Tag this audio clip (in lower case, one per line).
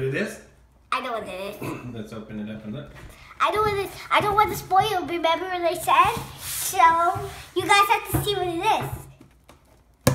speech